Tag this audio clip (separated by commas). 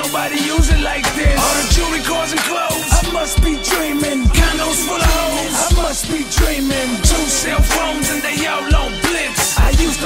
Rhythm and blues, Music